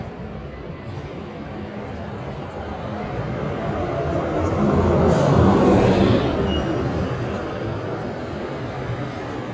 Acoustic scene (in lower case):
street